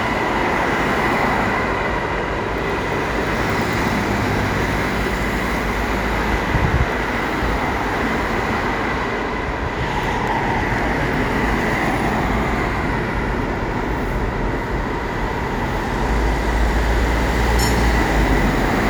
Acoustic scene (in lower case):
street